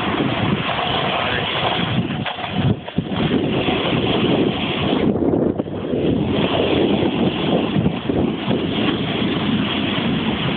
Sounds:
Speech

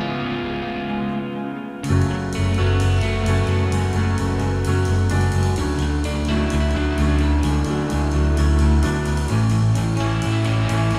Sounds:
Music

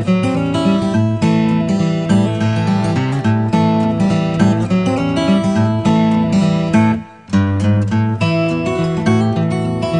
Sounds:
Music

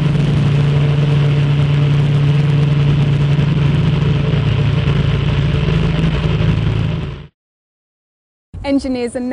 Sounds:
Speech, Wind

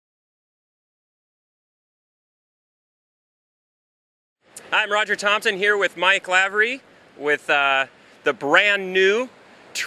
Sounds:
Speech

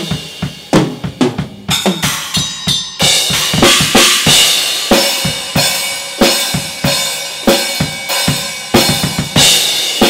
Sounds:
Drum kit, Bass drum, Musical instrument, Drum, Music

